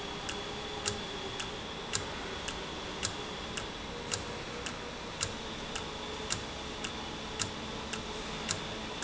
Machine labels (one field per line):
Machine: valve